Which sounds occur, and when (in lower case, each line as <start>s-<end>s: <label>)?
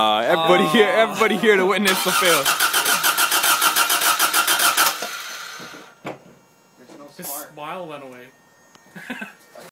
0.0s-9.7s: background noise
0.0s-2.4s: man speaking
1.8s-6.0s: engine starting
5.8s-9.7s: mechanisms
6.0s-6.3s: generic impact sounds
6.8s-8.2s: man speaking
8.9s-9.3s: laughter
9.5s-9.7s: man speaking